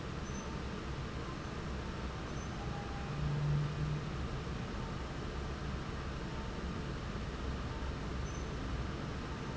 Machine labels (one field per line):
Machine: fan